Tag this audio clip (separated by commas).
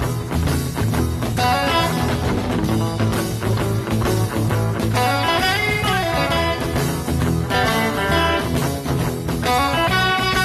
Music, Musical instrument, Electric guitar, Plucked string instrument, Guitar